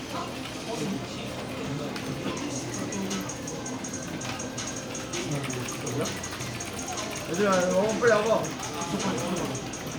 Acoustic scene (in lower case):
crowded indoor space